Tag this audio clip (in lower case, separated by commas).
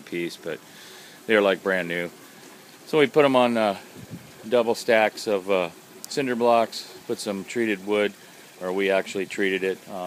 speech